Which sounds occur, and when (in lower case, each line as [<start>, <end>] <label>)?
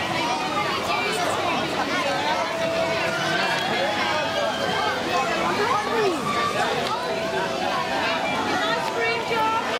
[0.00, 1.23] speech
[0.00, 9.71] hubbub
[1.40, 2.45] speech
[2.59, 4.94] speech
[5.07, 8.79] speech
[8.58, 9.63] female speech